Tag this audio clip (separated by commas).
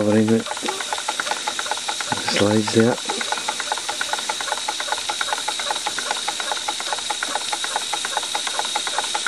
Engine, Speech